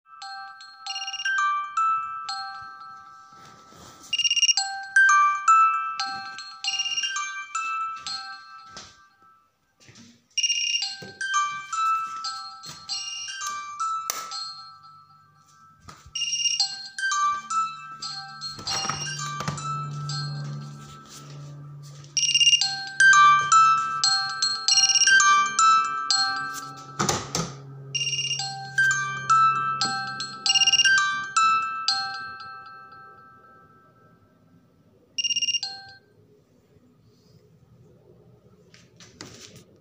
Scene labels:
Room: bedroom; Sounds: phone ringing, light switch, window, door

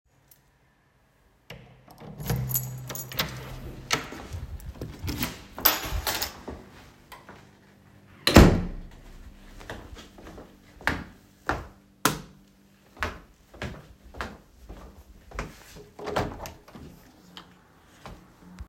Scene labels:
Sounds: door (more than once), keys, footsteps, light switch, window

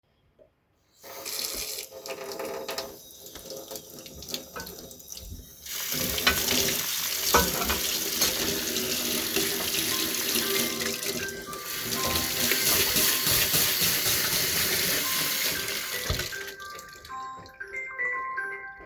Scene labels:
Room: kitchen; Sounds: running water, cutlery and dishes, phone ringing

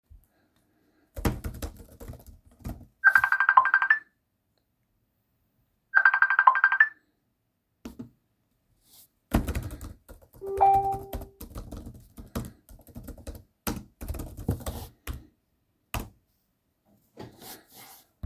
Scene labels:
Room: office; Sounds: keyboard typing, phone ringing

